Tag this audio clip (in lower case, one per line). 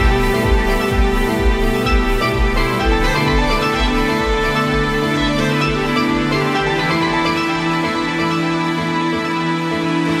theme music
music